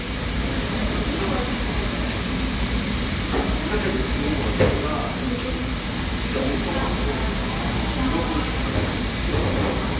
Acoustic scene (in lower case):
cafe